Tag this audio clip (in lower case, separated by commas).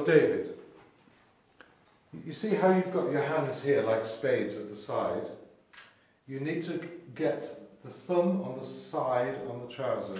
speech